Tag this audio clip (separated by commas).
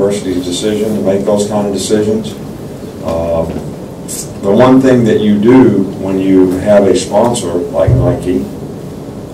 Speech